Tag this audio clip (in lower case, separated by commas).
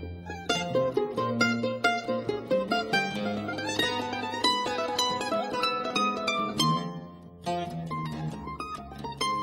mandolin, plucked string instrument, guitar, musical instrument, music